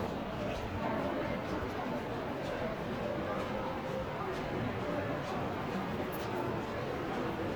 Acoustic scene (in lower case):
crowded indoor space